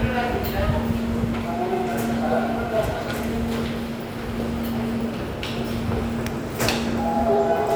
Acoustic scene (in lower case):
subway station